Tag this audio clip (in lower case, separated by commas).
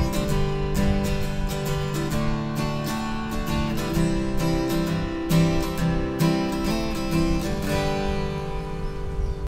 strum, music, acoustic guitar, plucked string instrument, guitar, musical instrument